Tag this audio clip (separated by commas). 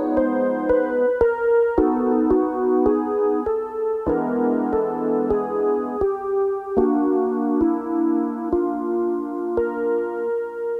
Musical instrument, Music